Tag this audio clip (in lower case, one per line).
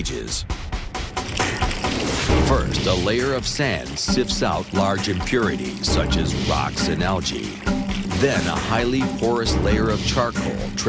speech
music